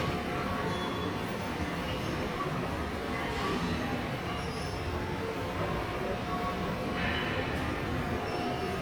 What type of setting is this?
subway station